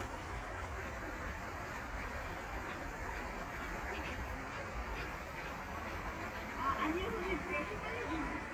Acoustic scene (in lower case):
park